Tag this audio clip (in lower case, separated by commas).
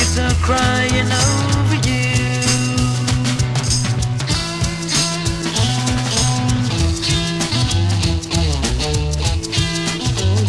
music